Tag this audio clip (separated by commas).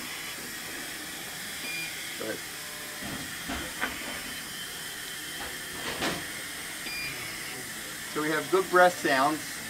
Speech, Steam